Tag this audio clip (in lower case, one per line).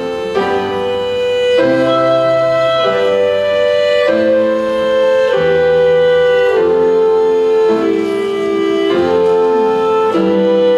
fiddle
music
musical instrument